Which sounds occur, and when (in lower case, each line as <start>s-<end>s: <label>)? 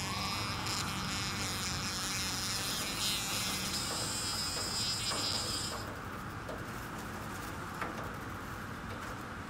0.0s-5.8s: buzz
0.0s-9.4s: wind
2.6s-3.0s: generic impact sounds
3.2s-3.4s: generic impact sounds
3.8s-4.1s: generic impact sounds
4.5s-4.6s: generic impact sounds
5.1s-5.4s: generic impact sounds
5.6s-5.9s: generic impact sounds
6.4s-6.6s: generic impact sounds
6.9s-7.0s: generic impact sounds
7.2s-7.5s: generic impact sounds
7.7s-8.0s: generic impact sounds
8.8s-9.1s: generic impact sounds